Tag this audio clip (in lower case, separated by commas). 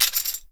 musical instrument, music, percussion, tambourine